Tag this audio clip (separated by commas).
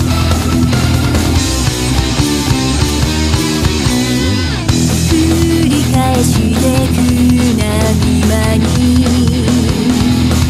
Music